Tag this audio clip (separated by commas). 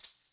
Rattle (instrument), Music, Musical instrument, Percussion